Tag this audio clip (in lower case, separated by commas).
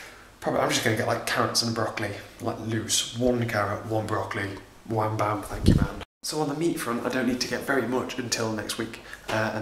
speech, inside a small room